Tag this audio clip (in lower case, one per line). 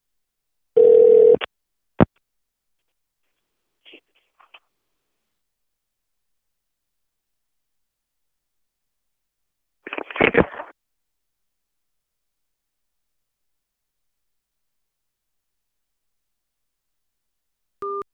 alarm
telephone